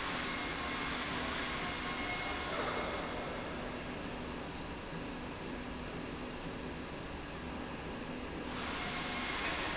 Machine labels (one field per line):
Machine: slide rail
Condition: normal